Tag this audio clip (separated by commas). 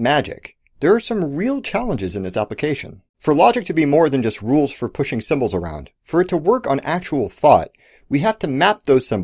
Speech